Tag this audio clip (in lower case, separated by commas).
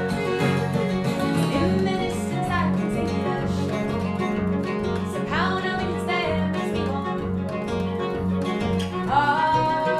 fiddle, guitar, music, plucked string instrument, bowed string instrument, musical instrument